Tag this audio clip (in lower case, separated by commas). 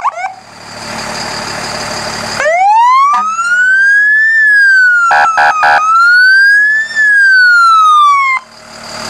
police car (siren), emergency vehicle, siren, truck, vehicle, fire truck (siren)